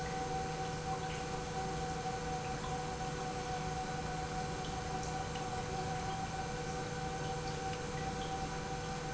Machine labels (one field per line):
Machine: pump